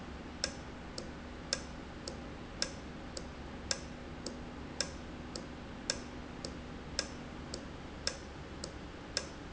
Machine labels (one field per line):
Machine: valve